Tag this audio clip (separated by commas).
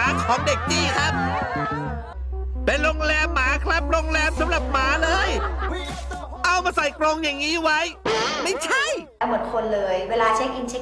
Music, Speech